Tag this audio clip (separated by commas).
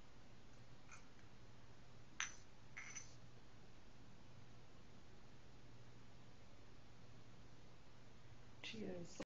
Speech, clink